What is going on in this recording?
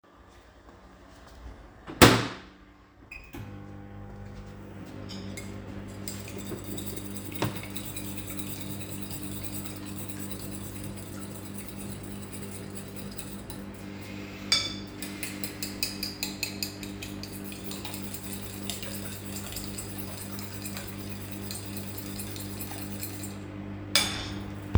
I put my coffee in the microwave, closed it and turned it on. While the coffee was in the microwave, I was beating the eggs with a fork.